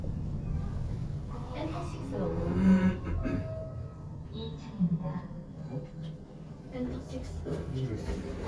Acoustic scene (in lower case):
elevator